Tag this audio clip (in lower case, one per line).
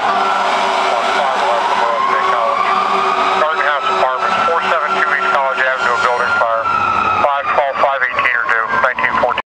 vehicle
speech